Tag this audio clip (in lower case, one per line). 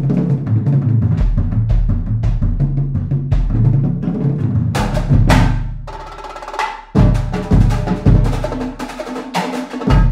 bass drum
drum roll
drum
snare drum
percussion